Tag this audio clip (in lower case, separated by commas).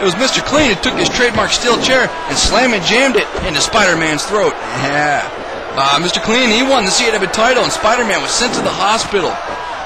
speech